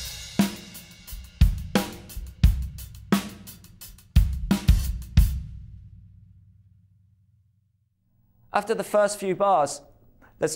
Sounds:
Bass drum, Rimshot, Drum kit, Percussion, Snare drum, Drum

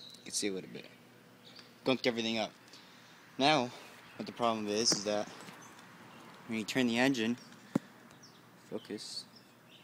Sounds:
Speech

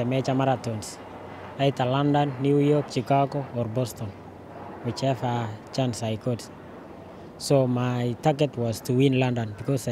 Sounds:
outside, urban or man-made, Speech

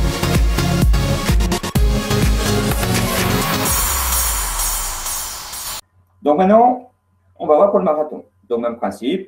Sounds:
Music, Speech

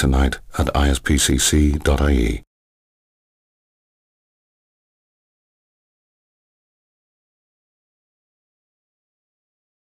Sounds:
Speech

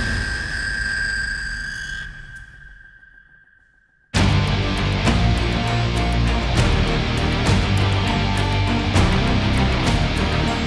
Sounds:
Music

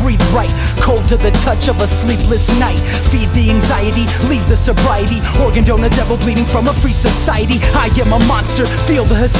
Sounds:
Rhythm and blues, Music

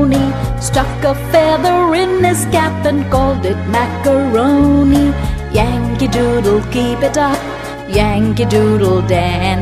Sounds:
Music for children, Music

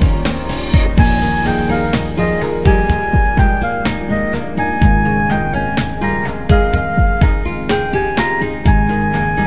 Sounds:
Theme music, Music

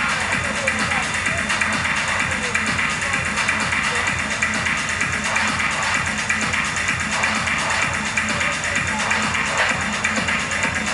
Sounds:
Techno, Electronic music, Music

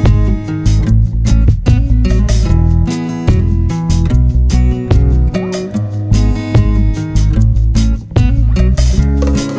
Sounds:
Music

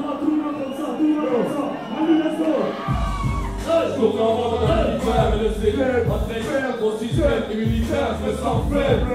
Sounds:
Speech, Music

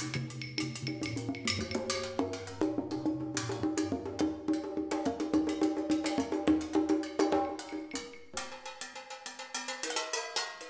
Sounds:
Music, Percussion

